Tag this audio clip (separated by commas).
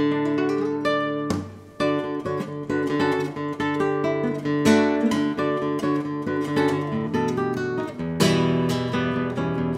Acoustic guitar, Musical instrument, Music, Guitar, Plucked string instrument